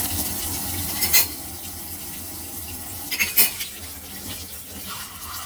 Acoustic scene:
kitchen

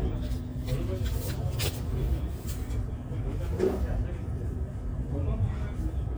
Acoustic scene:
crowded indoor space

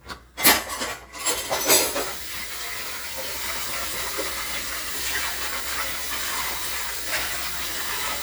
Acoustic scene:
kitchen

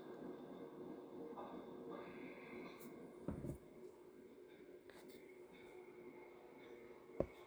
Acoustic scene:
subway train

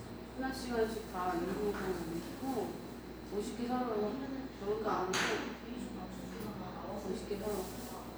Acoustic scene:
cafe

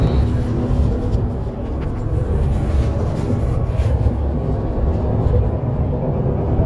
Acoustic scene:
bus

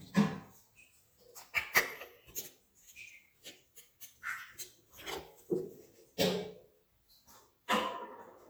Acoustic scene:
restroom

